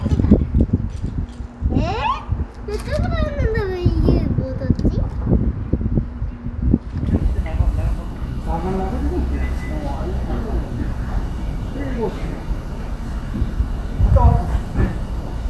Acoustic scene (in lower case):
residential area